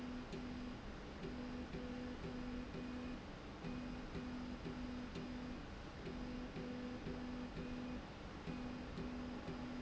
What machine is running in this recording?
slide rail